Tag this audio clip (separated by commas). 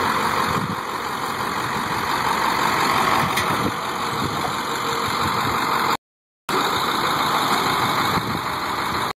Motor vehicle (road), Vehicle